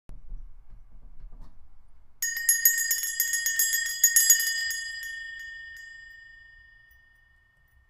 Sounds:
Bell

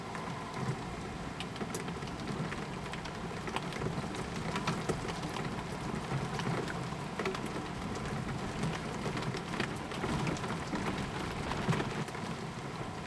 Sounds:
Rain, Water

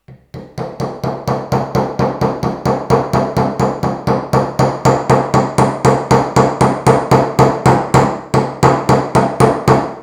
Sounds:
Hammer, Tools

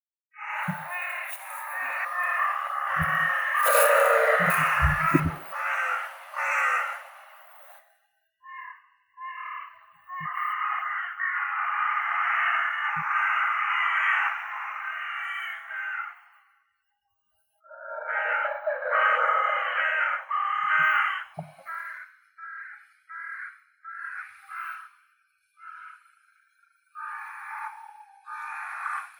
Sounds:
Bird, Animal, Crow, Wild animals

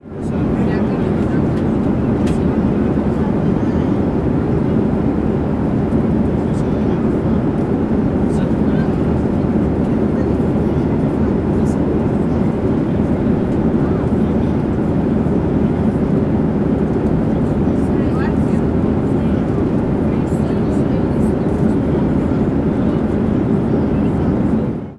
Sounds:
Conversation, Human voice, Human group actions, Vehicle, airplane, Speech, Aircraft, Chatter

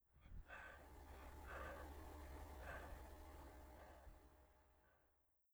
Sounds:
Respiratory sounds, Breathing

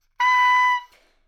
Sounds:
Wind instrument, Musical instrument, Music

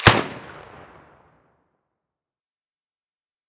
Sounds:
Explosion, gunfire

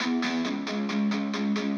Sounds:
Plucked string instrument, Musical instrument, Electric guitar, Music, Guitar

